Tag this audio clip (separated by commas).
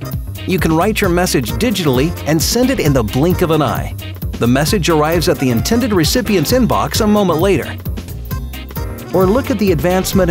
Speech, Music